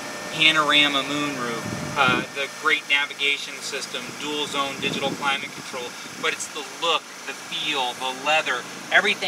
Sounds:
vehicle, car, speech, outside, urban or man-made

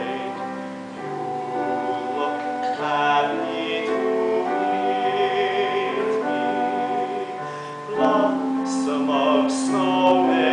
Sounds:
music, sad music, tender music

